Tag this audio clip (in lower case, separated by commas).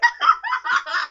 laughter, human voice